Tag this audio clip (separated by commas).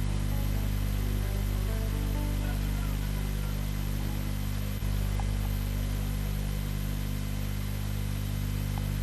Music